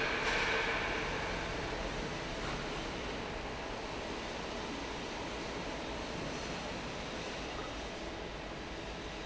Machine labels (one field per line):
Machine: fan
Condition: normal